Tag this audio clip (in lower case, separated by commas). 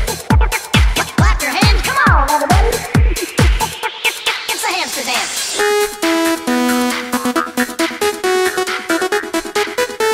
techno, music